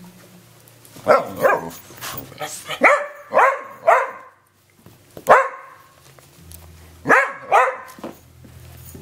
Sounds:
dog, animal, canids

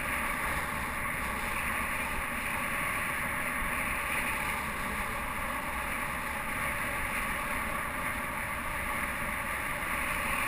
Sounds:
vehicle

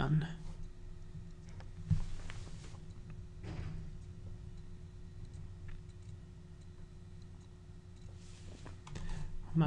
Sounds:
speech

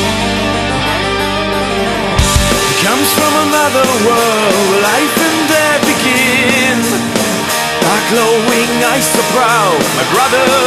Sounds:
music

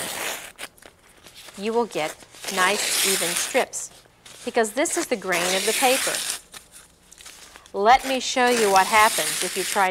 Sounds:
speech

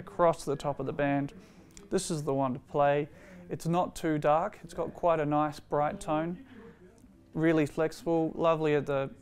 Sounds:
speech

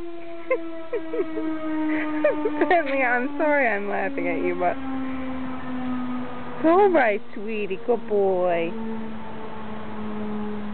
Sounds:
speech

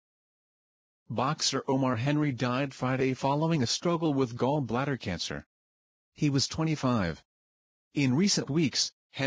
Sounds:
speech synthesizer, speech

